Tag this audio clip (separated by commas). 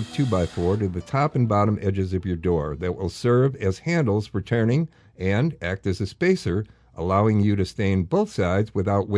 Speech, Music